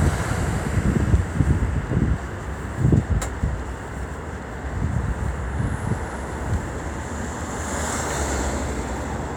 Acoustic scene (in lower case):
street